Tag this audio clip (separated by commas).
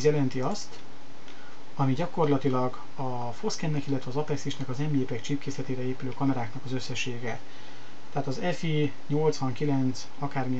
Speech